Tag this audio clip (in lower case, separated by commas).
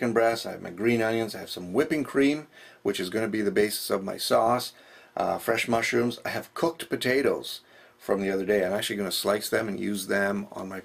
speech